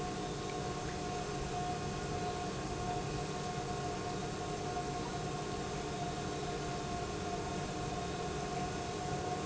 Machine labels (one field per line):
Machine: pump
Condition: normal